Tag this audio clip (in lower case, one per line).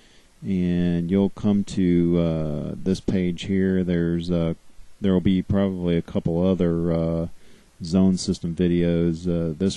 speech